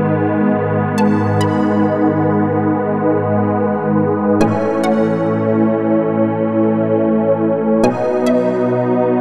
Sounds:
electronic music, music

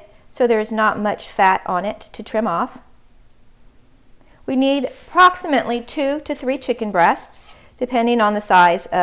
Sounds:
speech

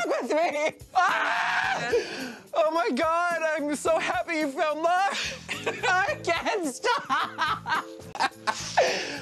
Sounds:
music, speech

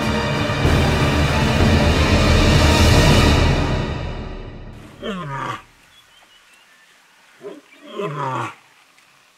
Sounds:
roaring cats, music, animal, outside, rural or natural, wild animals

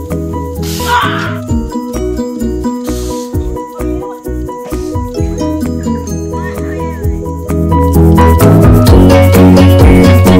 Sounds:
speech, music

